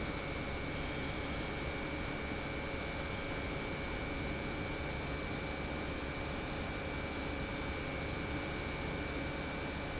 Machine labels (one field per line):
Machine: pump